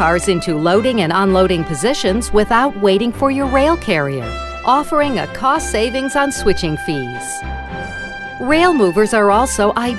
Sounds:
music
speech

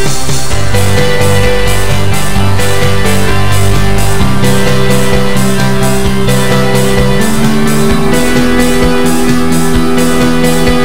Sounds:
music

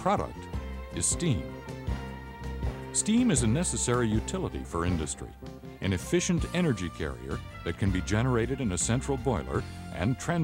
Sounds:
speech
music

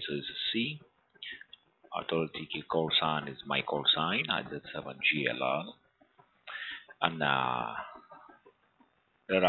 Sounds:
speech

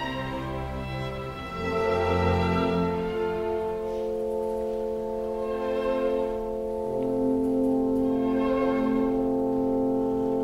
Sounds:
cello
double bass
bowed string instrument
fiddle

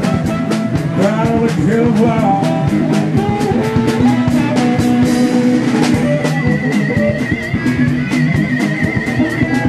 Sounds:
music
plucked string instrument
musical instrument
acoustic guitar
strum
guitar

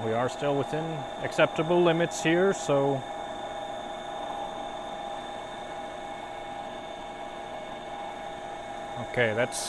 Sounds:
printer printing

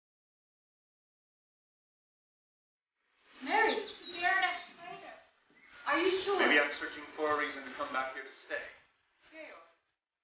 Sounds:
speech

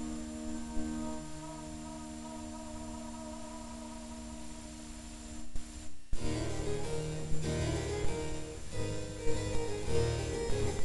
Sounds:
music

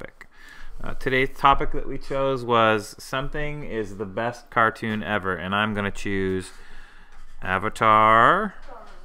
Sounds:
writing
speech

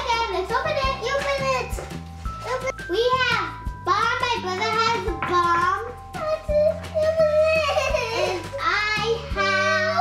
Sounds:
music
speech

